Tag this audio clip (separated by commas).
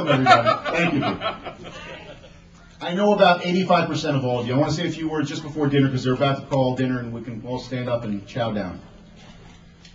Speech, monologue, Male speech